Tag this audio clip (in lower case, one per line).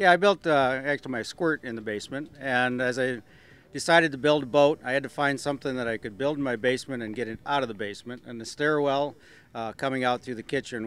speech